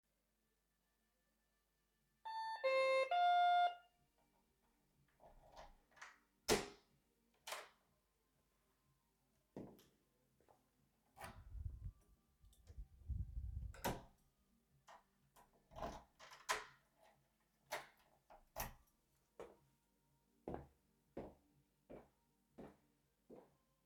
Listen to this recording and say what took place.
I rang the doorbell. I unlocked the door with my keys, walked into my apartment, and took my keys out of the lock. I then closed the door behind me and walked inside